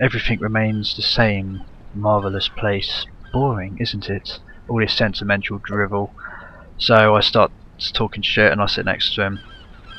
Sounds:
Speech

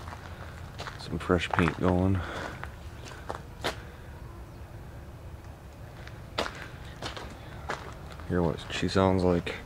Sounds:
Speech

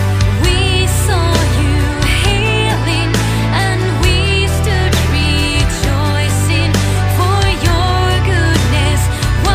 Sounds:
Music

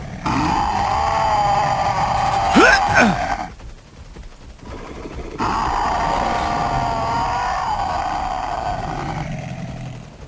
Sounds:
Vehicle

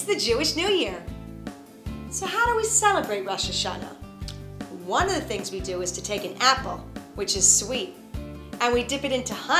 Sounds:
Music, Speech

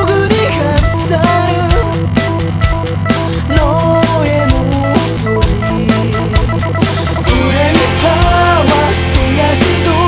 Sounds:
Pop music, Music

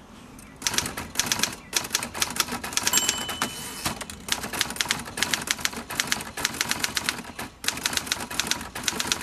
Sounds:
Typewriter

